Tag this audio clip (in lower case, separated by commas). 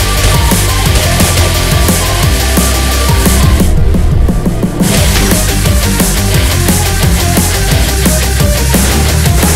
music